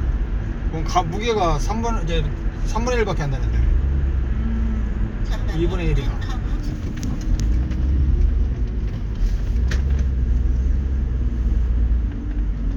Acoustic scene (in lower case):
car